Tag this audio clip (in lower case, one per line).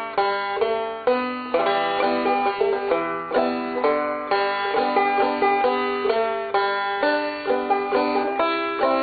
music
playing banjo
banjo